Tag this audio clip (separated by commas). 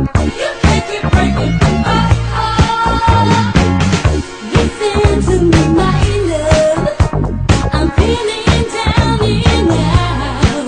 Music